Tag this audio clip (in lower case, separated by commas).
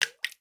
drip, liquid, water